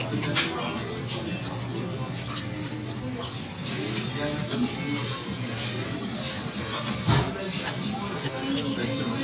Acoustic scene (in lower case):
crowded indoor space